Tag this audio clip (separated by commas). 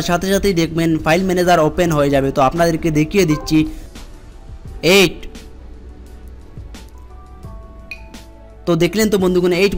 cell phone buzzing